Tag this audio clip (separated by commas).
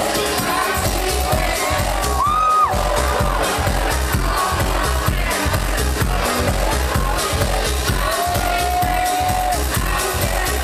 Sound effect, Music